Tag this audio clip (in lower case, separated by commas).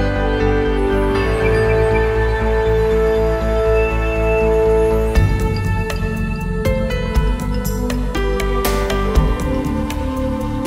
music, background music